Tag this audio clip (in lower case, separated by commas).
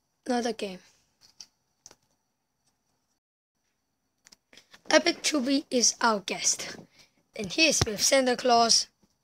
speech